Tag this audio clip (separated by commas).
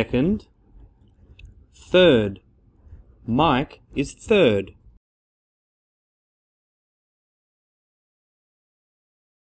Speech